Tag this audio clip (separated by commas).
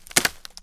Crack, Wood